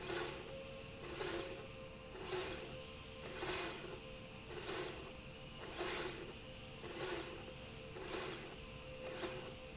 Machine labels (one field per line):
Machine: slide rail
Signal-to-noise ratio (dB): 6 dB